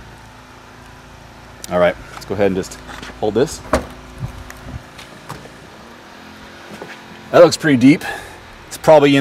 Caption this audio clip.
A man speaks then a door opens